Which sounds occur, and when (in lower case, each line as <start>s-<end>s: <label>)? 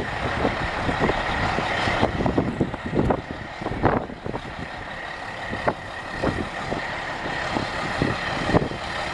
0.0s-9.1s: truck
0.0s-9.1s: wind
0.2s-1.6s: wind noise (microphone)
1.9s-4.9s: wind noise (microphone)
5.5s-5.8s: wind noise (microphone)
6.2s-6.8s: wind noise (microphone)
7.2s-7.6s: wind noise (microphone)
8.0s-8.2s: wind noise (microphone)
8.4s-8.8s: wind noise (microphone)